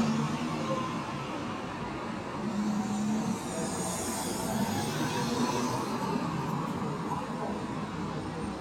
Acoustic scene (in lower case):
street